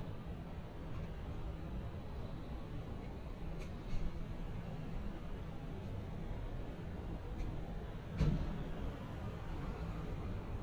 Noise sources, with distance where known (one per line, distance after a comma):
background noise